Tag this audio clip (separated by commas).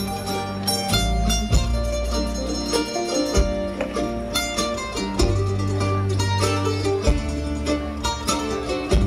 Orchestra, Flamenco